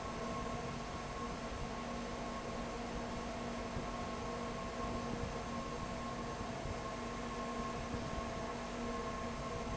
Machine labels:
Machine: fan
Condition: abnormal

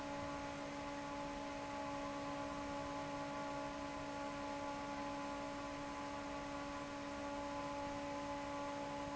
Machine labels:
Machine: fan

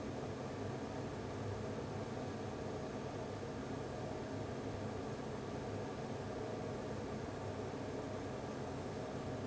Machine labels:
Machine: fan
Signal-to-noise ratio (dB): 6 dB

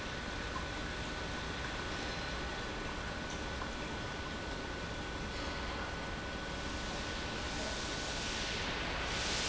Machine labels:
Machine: pump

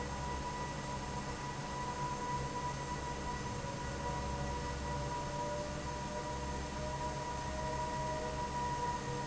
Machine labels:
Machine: fan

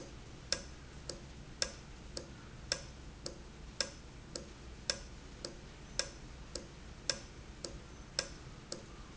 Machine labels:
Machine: valve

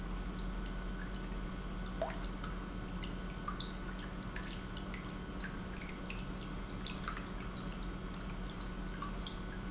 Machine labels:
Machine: pump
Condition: normal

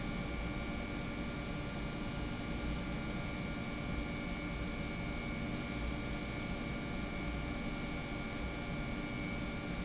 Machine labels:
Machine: pump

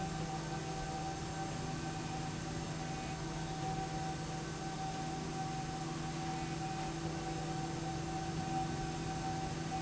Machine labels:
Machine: slide rail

